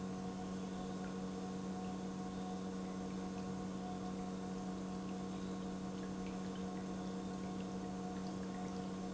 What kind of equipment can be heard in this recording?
pump